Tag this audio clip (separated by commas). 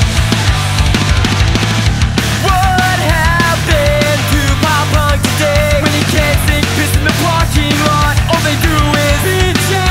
Guitar, Exciting music, Pop music, Musical instrument, Music, Bass guitar